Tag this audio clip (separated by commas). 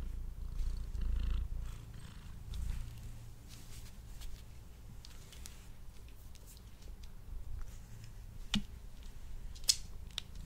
cat purring